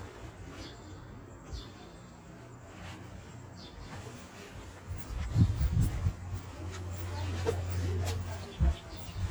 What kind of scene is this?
residential area